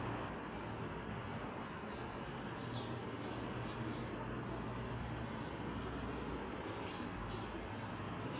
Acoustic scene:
residential area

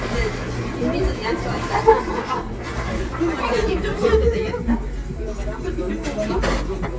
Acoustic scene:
restaurant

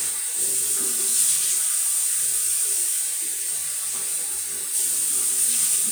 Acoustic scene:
restroom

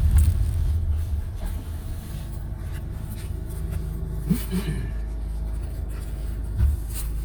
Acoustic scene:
car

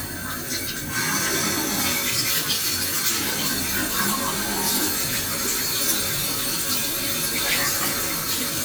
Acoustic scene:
restroom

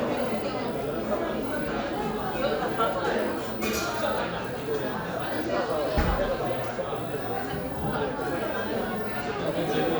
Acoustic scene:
crowded indoor space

